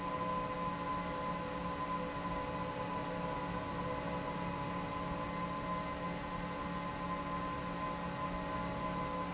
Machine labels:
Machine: fan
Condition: normal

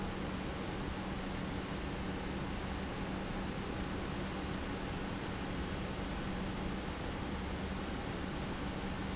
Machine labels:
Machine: pump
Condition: normal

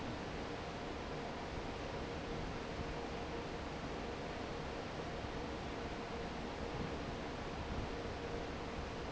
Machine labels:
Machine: fan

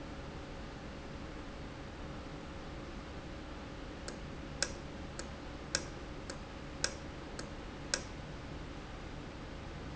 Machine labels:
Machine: valve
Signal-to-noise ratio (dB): 0 dB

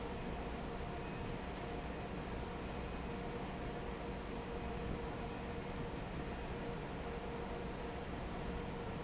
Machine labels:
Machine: fan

